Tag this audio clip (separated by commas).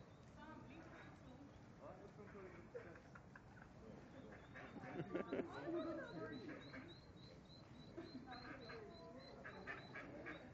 Duck, Animal